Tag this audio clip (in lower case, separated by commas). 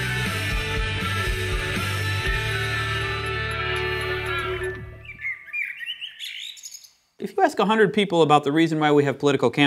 speech, music